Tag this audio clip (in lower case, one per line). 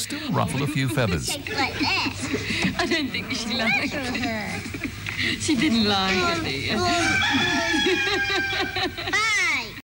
chicken
fowl
cock-a-doodle-doo